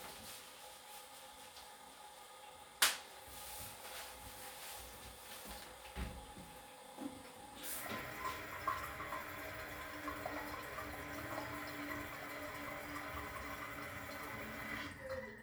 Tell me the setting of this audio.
restroom